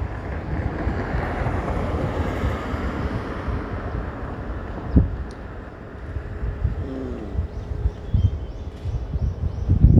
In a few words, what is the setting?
street